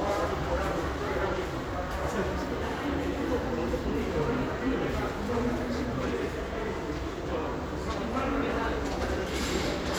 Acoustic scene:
crowded indoor space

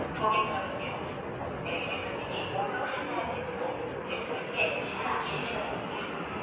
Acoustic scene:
subway station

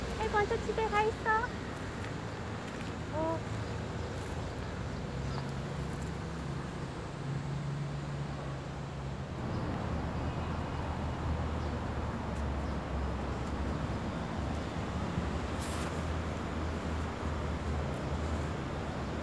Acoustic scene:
residential area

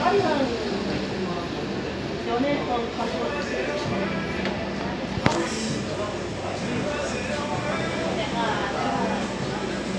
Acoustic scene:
cafe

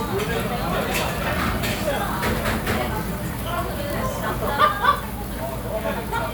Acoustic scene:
crowded indoor space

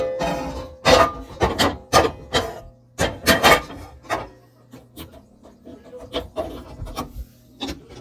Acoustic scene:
kitchen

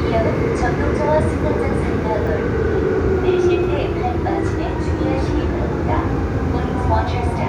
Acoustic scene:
subway train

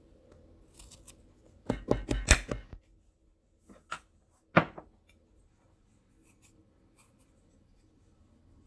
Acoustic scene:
kitchen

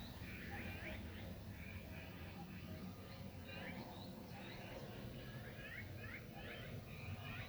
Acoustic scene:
park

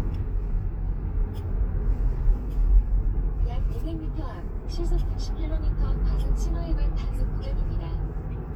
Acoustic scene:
car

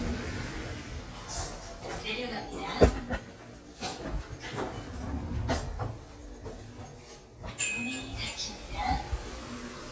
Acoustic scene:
elevator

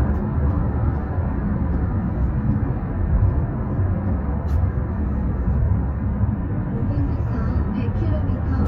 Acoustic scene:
car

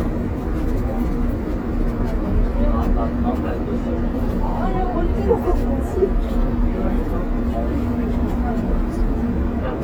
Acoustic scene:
bus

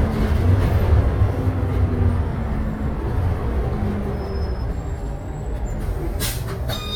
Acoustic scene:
bus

